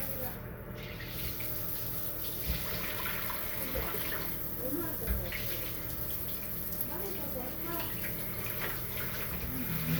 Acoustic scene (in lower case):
restroom